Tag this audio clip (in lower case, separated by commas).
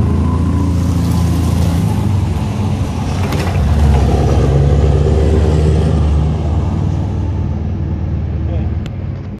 speech